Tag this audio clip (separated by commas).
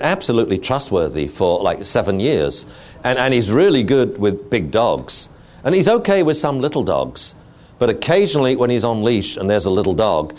Speech